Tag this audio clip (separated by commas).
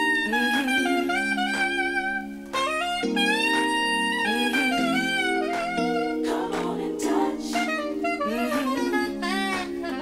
Music, playing saxophone, Saxophone